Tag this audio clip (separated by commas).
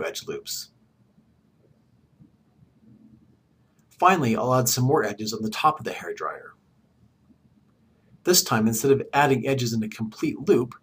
Speech